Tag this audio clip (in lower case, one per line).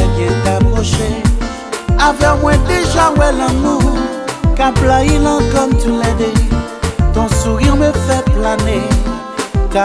music
soundtrack music